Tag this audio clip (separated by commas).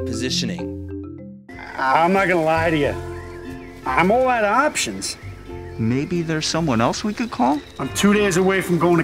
outside, rural or natural, Speech, Music, Animal